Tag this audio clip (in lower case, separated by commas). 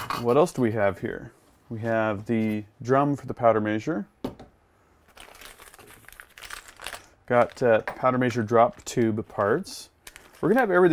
speech, inside a small room